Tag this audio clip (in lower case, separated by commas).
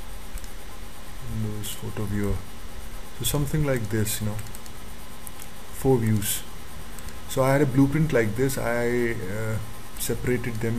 speech